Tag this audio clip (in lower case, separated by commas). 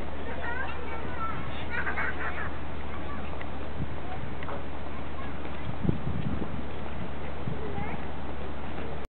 speech